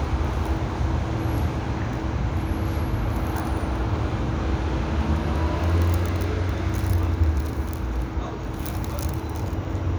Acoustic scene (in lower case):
residential area